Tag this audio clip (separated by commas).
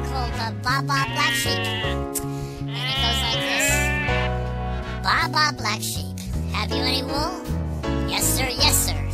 Music for children, Music, Sheep, Speech